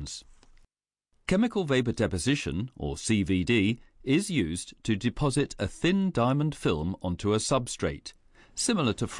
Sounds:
speech

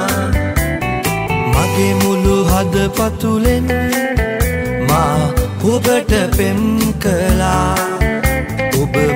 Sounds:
music
soul music

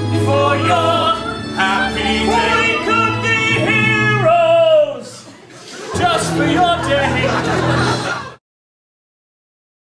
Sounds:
male singing
music

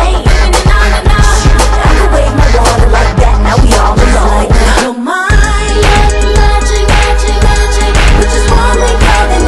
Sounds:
music

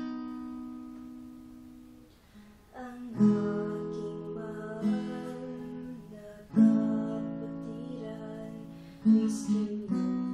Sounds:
music
female singing

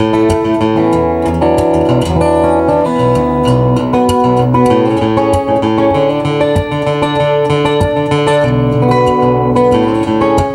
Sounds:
acoustic guitar
guitar
musical instrument
music
plucked string instrument
bowed string instrument

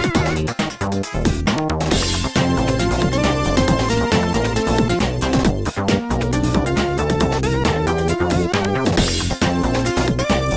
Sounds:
music

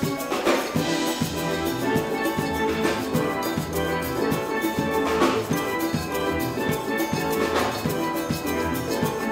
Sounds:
percussion
drum

